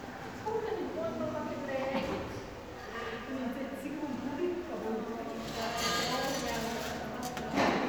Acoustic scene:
crowded indoor space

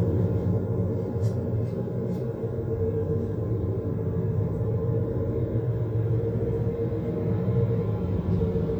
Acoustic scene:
car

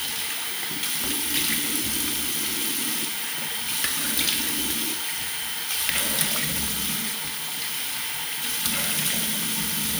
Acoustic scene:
restroom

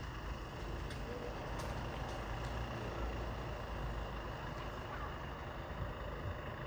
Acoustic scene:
residential area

